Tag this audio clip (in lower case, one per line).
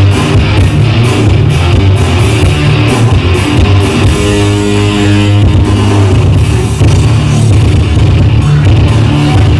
music
rock music
heavy metal